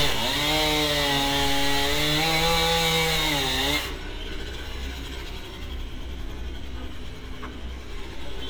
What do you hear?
chainsaw